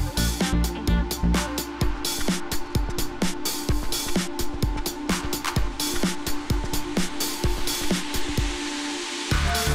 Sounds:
music

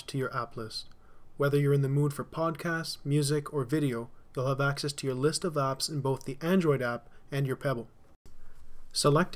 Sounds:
speech

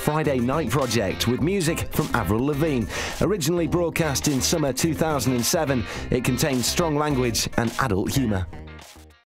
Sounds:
speech, music

